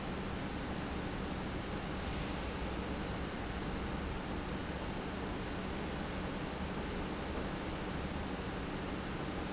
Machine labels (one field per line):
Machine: pump